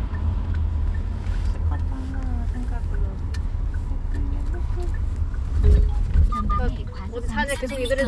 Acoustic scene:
car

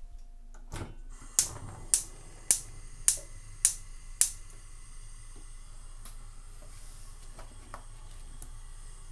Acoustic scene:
kitchen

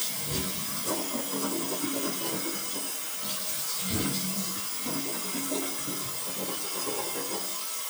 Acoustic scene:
restroom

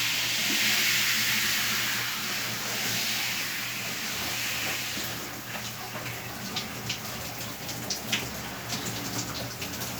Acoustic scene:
restroom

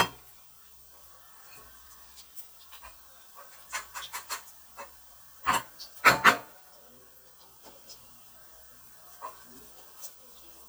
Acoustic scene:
kitchen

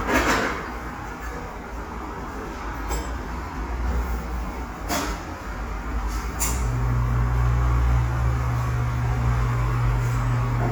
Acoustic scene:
cafe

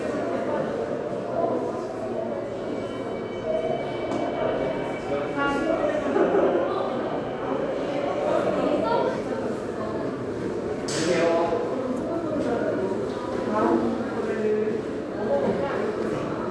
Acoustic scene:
subway station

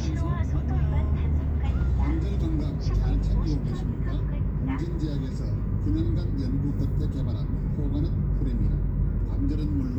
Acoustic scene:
car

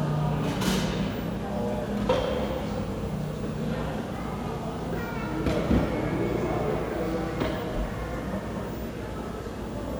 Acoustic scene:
cafe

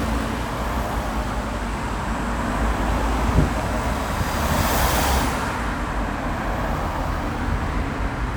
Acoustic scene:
street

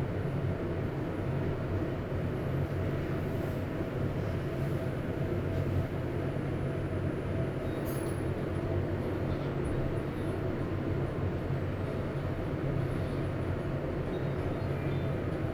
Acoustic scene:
elevator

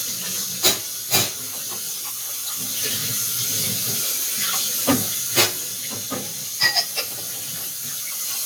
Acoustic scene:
kitchen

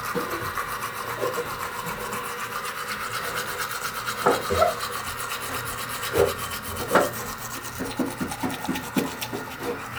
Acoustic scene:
restroom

